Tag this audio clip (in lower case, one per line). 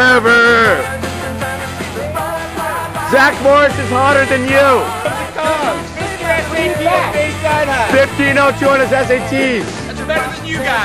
music
speech